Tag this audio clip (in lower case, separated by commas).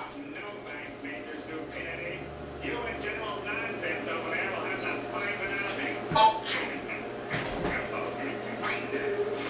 speech